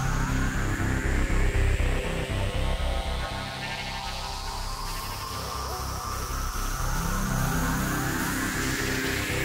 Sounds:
electronica, music

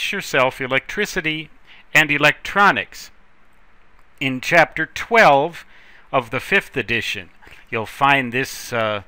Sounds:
speech

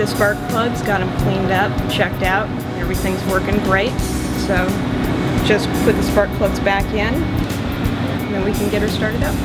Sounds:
music, speech

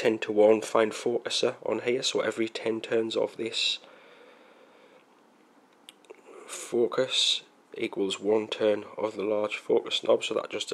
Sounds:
inside a small room, speech

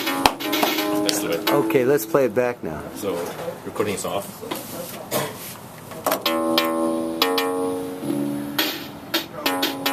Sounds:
speech, inside a small room, music

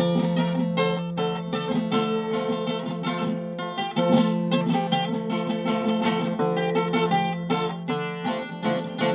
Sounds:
acoustic guitar, strum, plucked string instrument, musical instrument, guitar, music

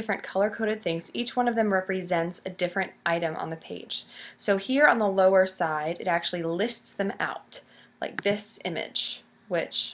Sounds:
speech

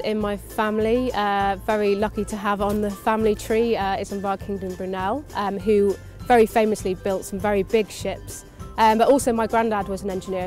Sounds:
speech, music

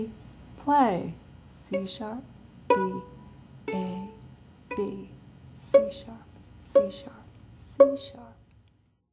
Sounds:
speech, fiddle, music, musical instrument, pizzicato

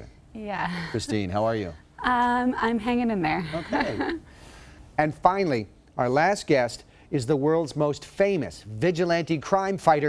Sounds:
speech

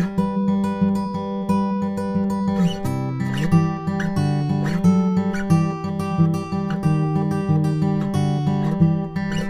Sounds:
music

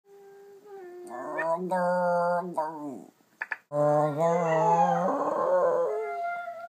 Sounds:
yip, animal, whimper (dog), domestic animals, dog

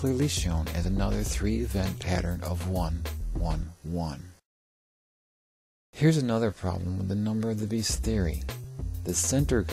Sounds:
music, speech synthesizer, speech

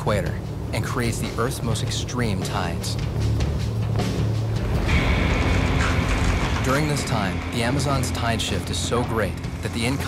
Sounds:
music, speech, narration

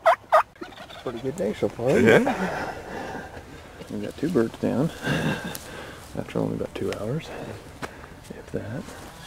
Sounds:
fowl, gobble, turkey

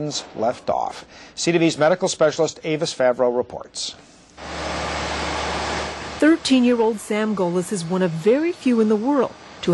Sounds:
speech

